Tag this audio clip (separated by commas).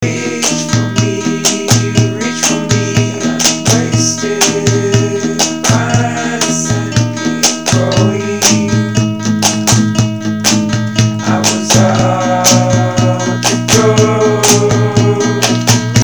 Acoustic guitar, Music, Musical instrument, Guitar, Plucked string instrument